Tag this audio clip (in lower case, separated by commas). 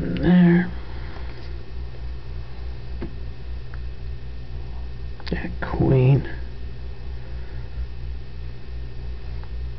inside a small room, speech